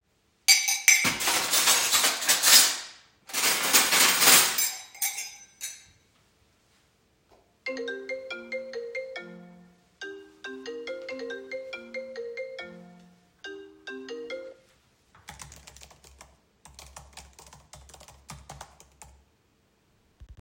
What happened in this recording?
I unloaded the dishwasher during that my phone started ringing and then I had to type something on my laptop.